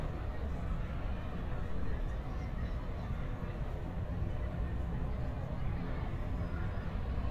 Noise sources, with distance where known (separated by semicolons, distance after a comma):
person or small group talking, far